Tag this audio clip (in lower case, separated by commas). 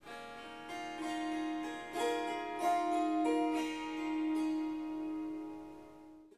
harp, musical instrument, music